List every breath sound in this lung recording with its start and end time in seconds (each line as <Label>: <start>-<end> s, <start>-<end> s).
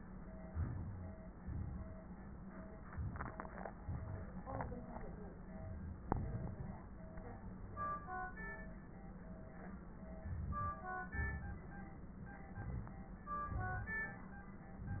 Inhalation: 0.40-1.38 s, 2.85-3.80 s, 4.43-5.43 s, 6.06-6.99 s, 10.03-11.06 s, 12.43-13.30 s
Exhalation: 1.37-2.47 s, 3.80-4.44 s, 5.41-6.04 s, 11.08-12.01 s, 13.32-14.29 s
Wheeze: 0.47-1.14 s
Crackles: 2.85-3.80 s, 4.45-5.39 s, 5.41-6.04 s, 6.06-6.99 s, 10.03-11.06 s, 11.08-12.01 s, 12.43-13.30 s, 13.32-14.29 s